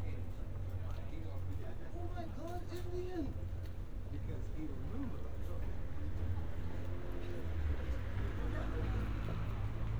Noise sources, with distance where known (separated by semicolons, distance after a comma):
medium-sounding engine; unidentified human voice, near